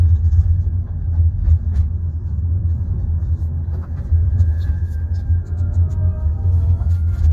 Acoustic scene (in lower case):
car